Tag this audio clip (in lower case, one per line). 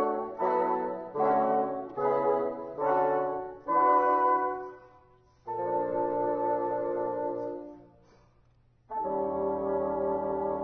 playing bassoon